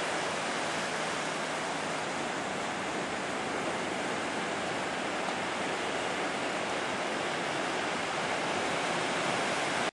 The waves are coming ashore on the ocean